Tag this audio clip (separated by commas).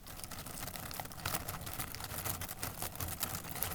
Crackle